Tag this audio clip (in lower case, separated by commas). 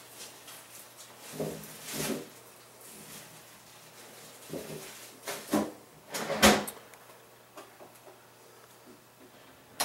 drawer open or close